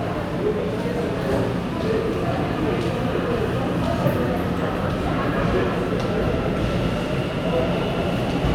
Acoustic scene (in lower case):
subway station